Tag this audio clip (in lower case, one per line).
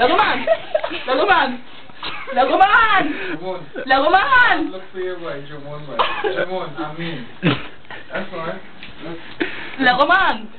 speech